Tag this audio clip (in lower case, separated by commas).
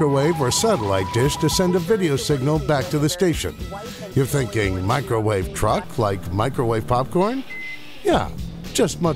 music, speech